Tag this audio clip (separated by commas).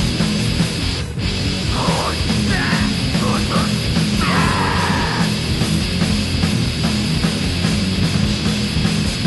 Music